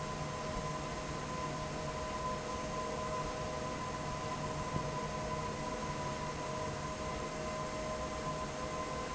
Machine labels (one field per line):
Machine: fan